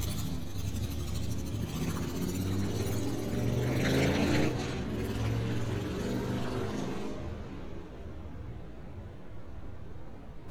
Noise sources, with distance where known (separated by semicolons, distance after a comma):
medium-sounding engine, near